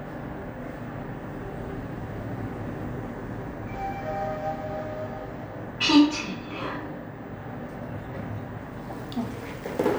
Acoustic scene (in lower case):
elevator